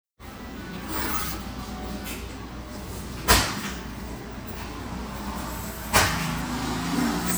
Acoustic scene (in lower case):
restaurant